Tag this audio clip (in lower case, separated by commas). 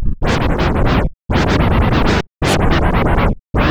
music, scratching (performance technique), musical instrument